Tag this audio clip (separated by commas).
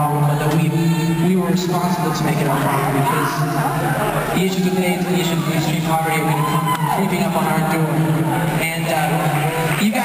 Speech, Male speech